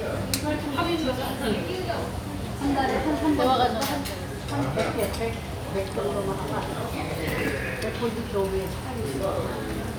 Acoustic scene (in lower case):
restaurant